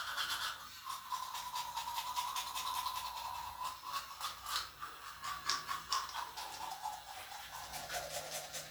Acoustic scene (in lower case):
restroom